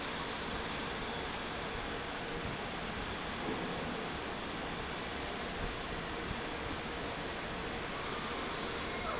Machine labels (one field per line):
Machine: fan